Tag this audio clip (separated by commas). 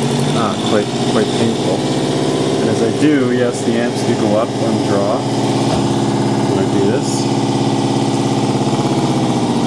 Engine, Speech